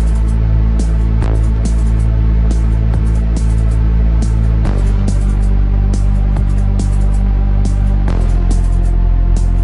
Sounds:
sound effect
music

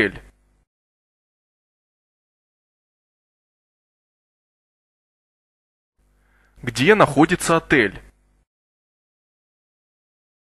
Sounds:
speech

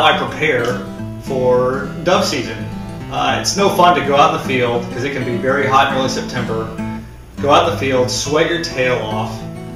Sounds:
music
speech

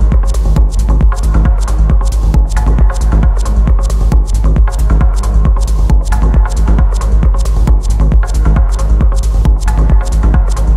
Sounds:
music

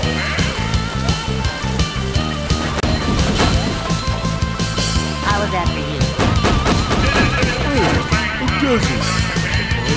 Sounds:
music
speech

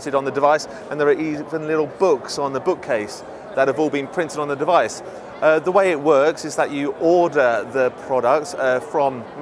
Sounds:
speech

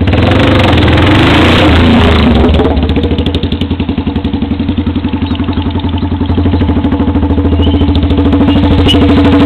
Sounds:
motorcycle

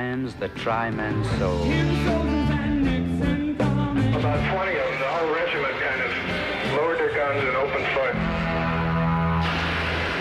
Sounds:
rock and roll
music

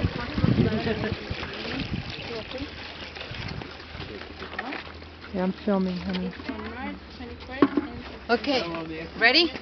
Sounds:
stream
speech

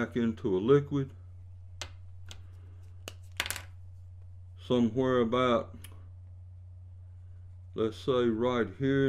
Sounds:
speech

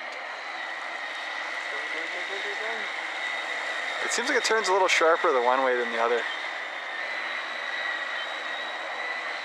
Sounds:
speedboat
speech

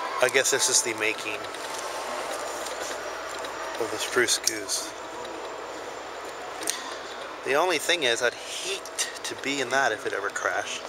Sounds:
speech

